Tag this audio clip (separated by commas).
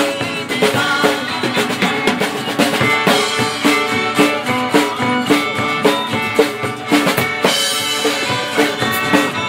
Drum, Musical instrument, Drum kit, Music